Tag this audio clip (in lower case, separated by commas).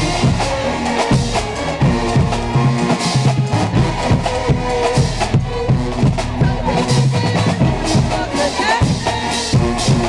music